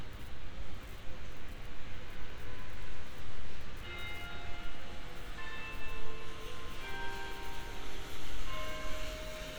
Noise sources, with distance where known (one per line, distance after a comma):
non-machinery impact, near
car horn, far
music from an unclear source, near